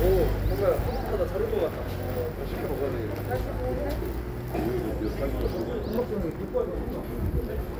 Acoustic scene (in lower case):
residential area